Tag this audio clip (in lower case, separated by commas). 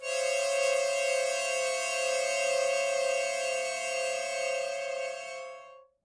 music, harmonica, musical instrument